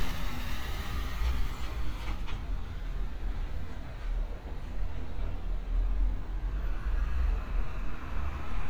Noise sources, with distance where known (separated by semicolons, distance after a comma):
engine of unclear size, far